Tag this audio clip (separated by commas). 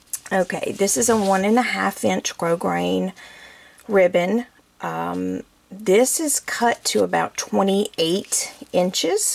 Speech